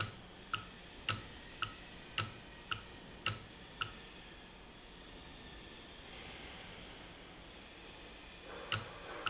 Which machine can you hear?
valve